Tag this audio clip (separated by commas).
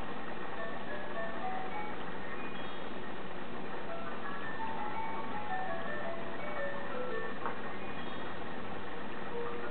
Music